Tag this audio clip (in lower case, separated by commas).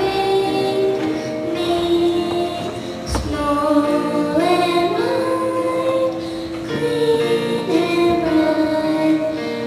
tender music, music